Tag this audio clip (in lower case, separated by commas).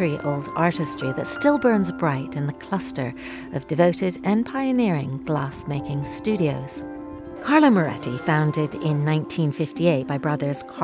speech, music